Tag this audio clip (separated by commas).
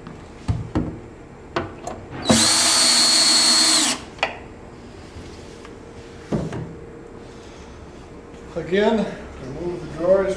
Tools, Wood, Speech